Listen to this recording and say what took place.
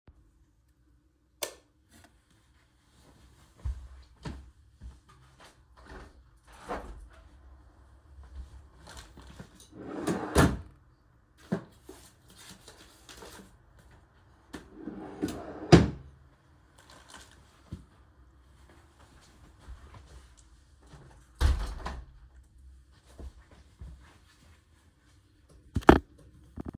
I turned on the light in my room, opened a window to ventilate and picked PJs to change into for the night. I then closed the wardrobe drawer and the window because the air was too cold.